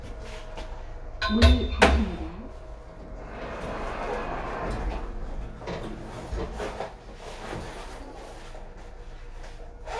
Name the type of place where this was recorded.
elevator